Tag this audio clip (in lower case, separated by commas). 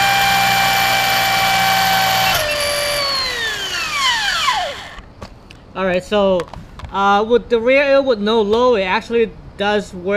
inside a small room, speech